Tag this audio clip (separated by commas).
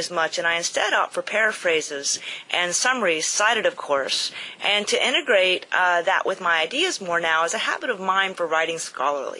Speech